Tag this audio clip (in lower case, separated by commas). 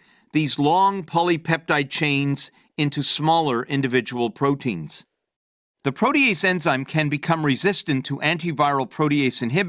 speech